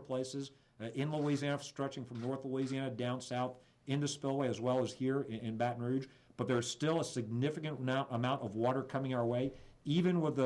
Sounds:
Speech

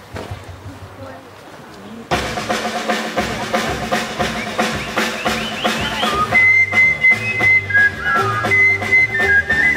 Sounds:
Speech, Dance music, Music

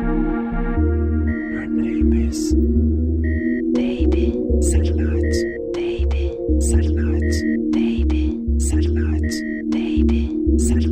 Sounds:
Electronic music, Music

